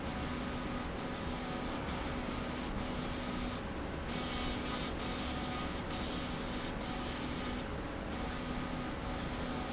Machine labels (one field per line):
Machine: slide rail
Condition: abnormal